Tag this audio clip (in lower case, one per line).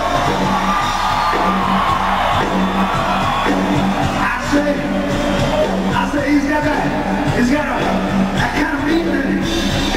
music